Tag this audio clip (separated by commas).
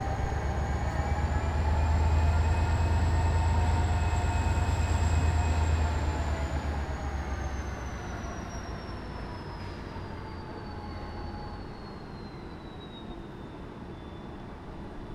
Rail transport, Train, Vehicle